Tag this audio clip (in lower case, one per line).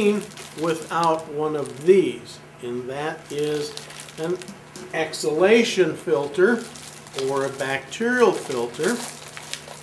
speech